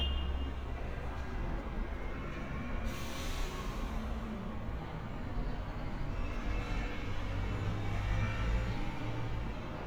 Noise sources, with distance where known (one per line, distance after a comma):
medium-sounding engine
car horn, far